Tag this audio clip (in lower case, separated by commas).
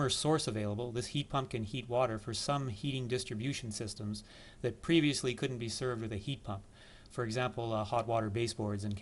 speech